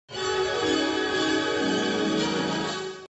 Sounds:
music

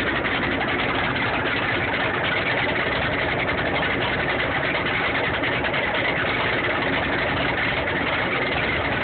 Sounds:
vehicle

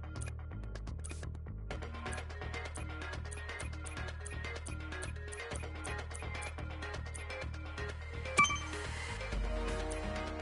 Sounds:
music

